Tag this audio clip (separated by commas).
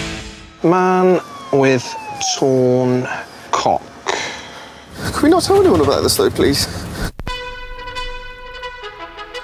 Speech